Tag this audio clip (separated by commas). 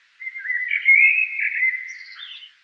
Wild animals, Bird, Animal